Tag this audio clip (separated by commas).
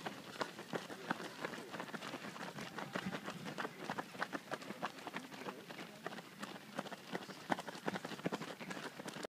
outside, rural or natural, Run, people running